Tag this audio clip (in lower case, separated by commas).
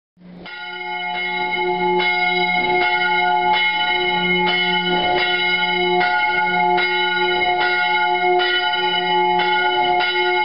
church bell, bell